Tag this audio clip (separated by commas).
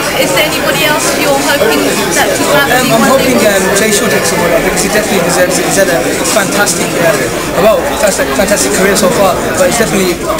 Speech